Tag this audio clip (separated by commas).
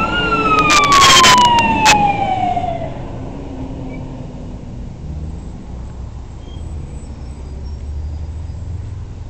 Siren, Emergency vehicle, fire truck (siren)